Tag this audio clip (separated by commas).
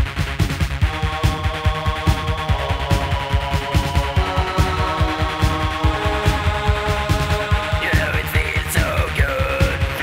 Music